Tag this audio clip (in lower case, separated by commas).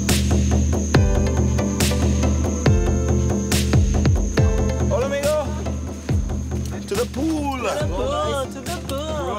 music, speech